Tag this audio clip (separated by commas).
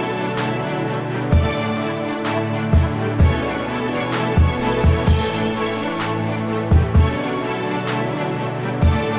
Music